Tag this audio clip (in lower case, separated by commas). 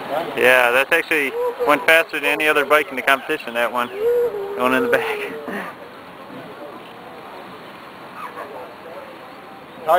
speech